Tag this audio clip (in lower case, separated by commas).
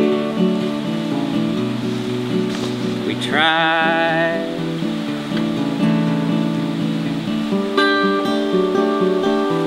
music